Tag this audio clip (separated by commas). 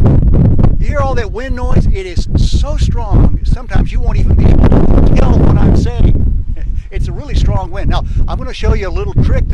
wind noise